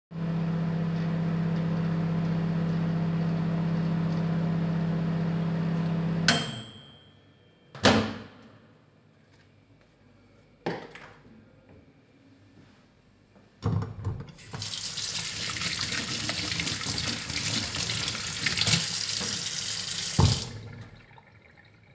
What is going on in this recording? I ran the microwave, took out the food and washed my hand.